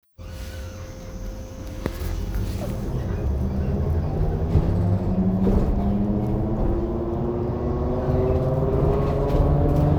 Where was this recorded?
on a bus